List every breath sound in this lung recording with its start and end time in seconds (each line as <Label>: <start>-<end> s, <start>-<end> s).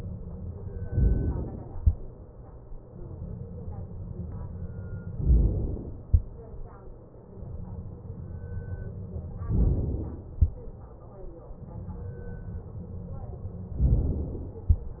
Inhalation: 0.84-1.76 s, 5.18-6.08 s, 9.50-10.34 s, 13.75-14.74 s